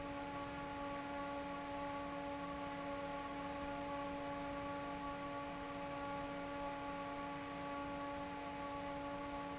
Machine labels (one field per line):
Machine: fan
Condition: normal